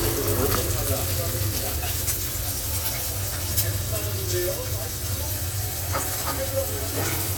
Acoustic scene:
restaurant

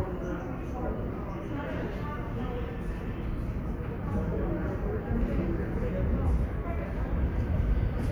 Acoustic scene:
subway station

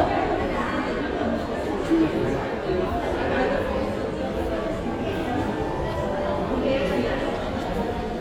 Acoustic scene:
crowded indoor space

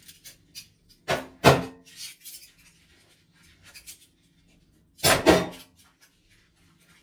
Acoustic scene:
kitchen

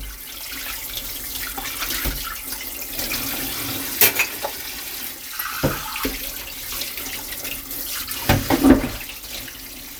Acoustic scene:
kitchen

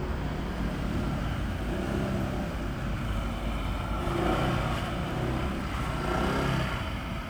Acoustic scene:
residential area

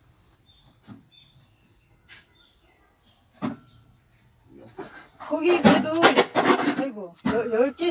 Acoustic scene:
park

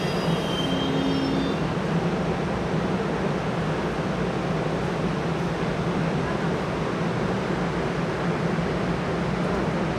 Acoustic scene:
subway station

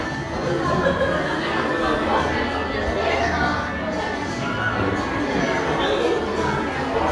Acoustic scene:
crowded indoor space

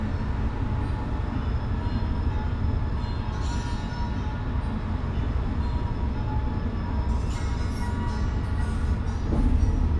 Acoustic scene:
bus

